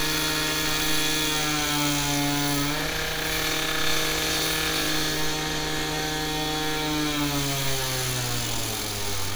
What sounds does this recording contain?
small or medium rotating saw